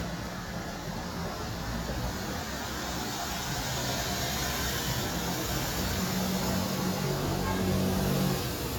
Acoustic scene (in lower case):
street